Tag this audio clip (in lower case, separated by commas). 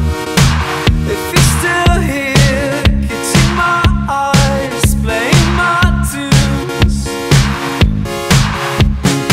music